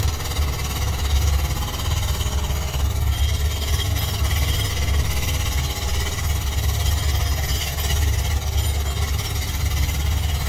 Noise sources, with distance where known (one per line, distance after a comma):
jackhammer, near